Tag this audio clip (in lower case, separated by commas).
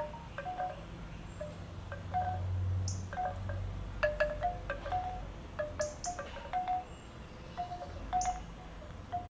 chime, wind chime